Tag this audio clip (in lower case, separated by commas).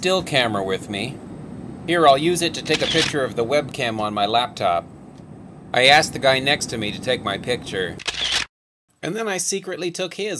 inside a small room, speech